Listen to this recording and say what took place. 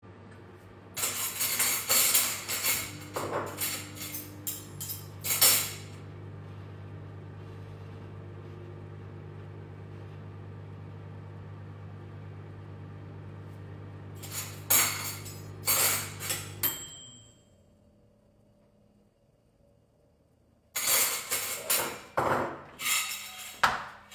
Microwave running continously. I move cutlery around. Microwave stopps and bings. Move some more cutlery.